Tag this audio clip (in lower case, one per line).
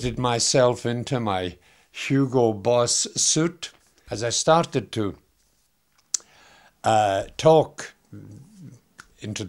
speech